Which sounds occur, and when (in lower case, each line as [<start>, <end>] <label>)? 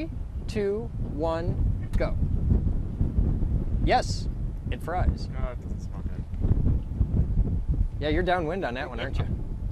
[0.00, 0.09] human voice
[0.00, 9.71] wind noise (microphone)
[0.01, 9.37] conversation
[0.46, 0.87] male speech
[1.10, 1.51] male speech
[1.74, 2.07] male speech
[1.87, 2.09] generic impact sounds
[3.83, 4.29] male speech
[4.67, 6.23] male speech
[6.77, 6.89] generic impact sounds
[7.99, 9.29] male speech